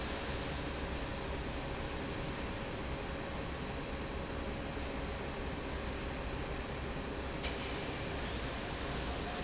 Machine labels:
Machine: fan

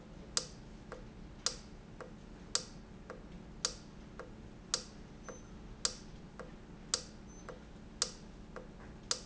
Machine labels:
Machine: valve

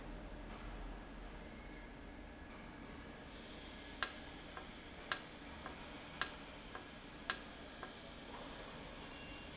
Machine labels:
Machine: valve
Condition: normal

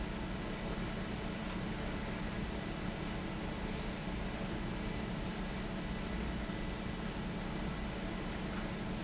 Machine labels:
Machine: fan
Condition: abnormal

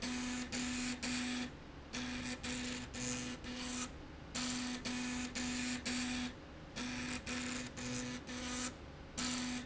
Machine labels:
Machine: slide rail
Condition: abnormal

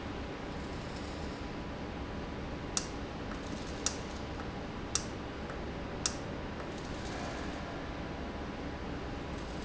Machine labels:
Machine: valve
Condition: normal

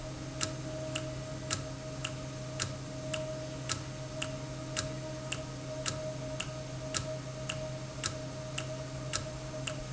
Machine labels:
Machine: valve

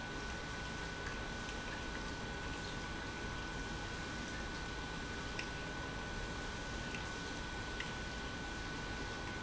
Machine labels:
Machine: pump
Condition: normal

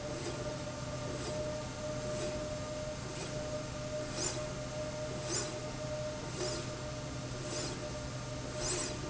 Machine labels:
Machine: slide rail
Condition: normal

